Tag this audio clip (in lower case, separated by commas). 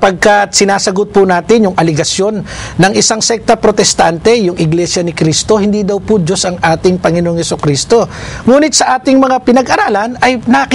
speech